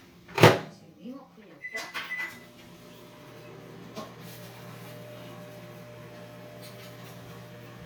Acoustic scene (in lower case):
kitchen